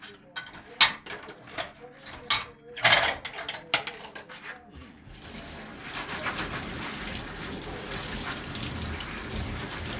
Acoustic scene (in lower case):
kitchen